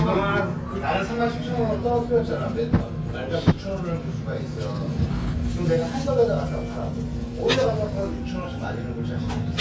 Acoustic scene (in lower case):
restaurant